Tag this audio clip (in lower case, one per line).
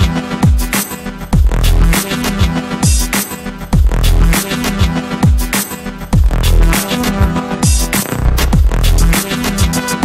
soundtrack music
music